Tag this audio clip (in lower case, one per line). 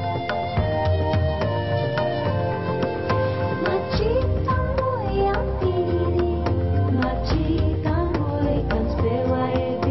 music